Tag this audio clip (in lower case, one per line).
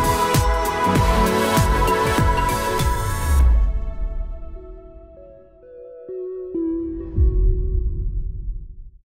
music